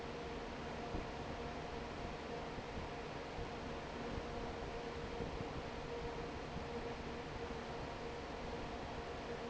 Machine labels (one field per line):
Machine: fan